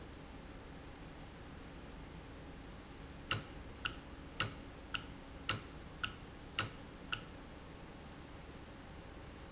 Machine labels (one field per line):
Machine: valve